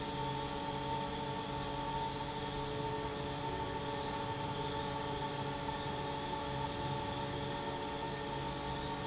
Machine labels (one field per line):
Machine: fan